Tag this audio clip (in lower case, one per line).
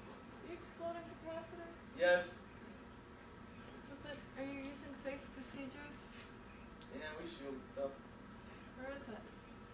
speech